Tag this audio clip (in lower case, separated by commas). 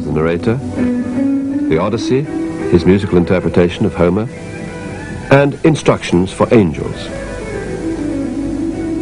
speech, music